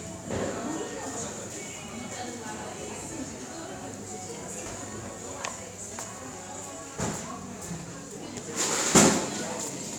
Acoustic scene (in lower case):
cafe